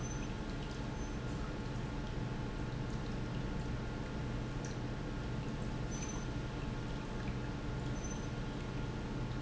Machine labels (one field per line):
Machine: pump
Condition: normal